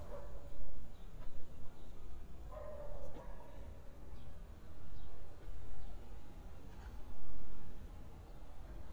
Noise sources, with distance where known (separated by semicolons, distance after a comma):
dog barking or whining, far